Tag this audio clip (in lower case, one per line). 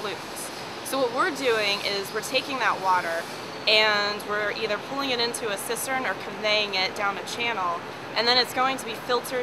speech